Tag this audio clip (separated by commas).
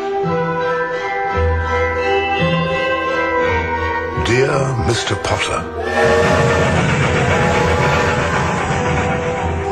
Speech, Music